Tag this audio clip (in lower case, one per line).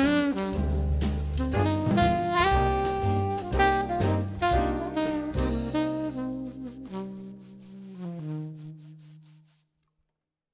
musical instrument
woodwind instrument
playing saxophone
jazz
saxophone
music